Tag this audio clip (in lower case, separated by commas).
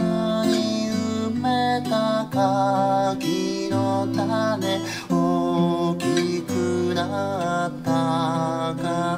music, musical instrument, acoustic guitar, guitar, plucked string instrument